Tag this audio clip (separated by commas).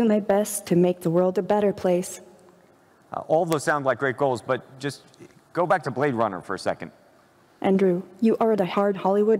female speech